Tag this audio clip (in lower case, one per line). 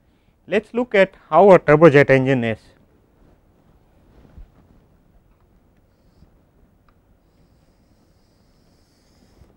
speech